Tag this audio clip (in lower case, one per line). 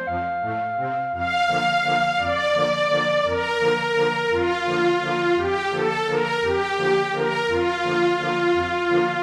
music